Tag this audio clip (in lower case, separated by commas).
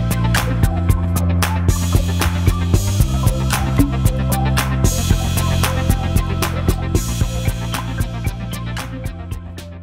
soundtrack music, music